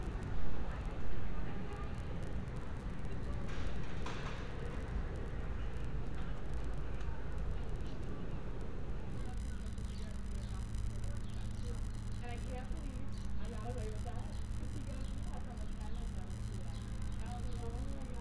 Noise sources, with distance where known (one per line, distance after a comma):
person or small group talking